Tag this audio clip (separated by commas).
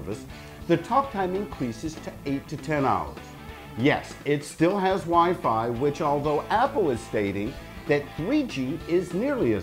Music, inside a small room, Speech